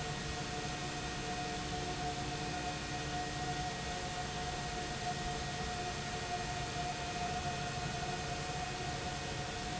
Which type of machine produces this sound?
pump